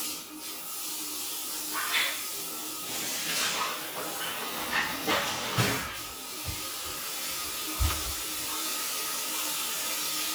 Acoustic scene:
restroom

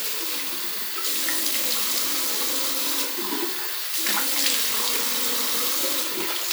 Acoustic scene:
restroom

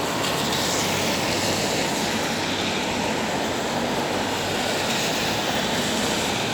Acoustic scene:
street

